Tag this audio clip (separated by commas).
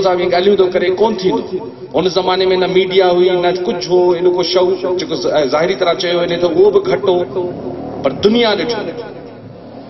man speaking, Speech